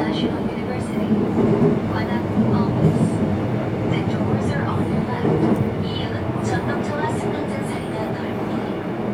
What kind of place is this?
subway train